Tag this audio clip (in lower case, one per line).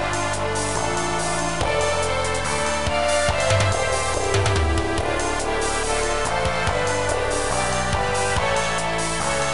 music
funny music